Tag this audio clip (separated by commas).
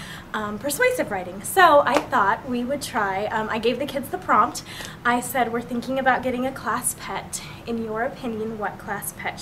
Speech